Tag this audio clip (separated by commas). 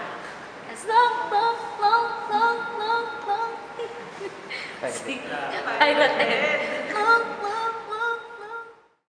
Female singing, Speech